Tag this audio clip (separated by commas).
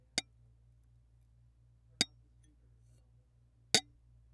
Glass, Tap